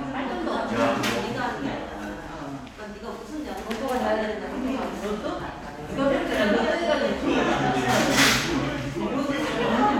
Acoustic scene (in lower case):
crowded indoor space